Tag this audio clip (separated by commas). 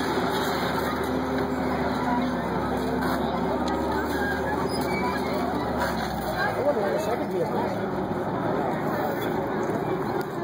Speech